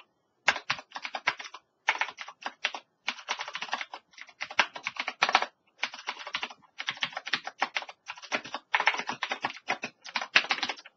Rapid, continuous tapping